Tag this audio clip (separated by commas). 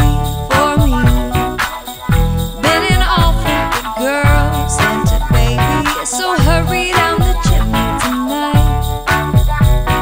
Funk, Music